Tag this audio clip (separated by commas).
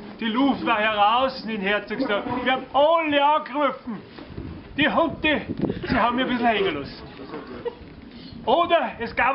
Speech